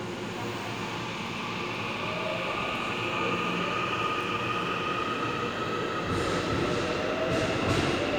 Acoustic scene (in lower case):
subway station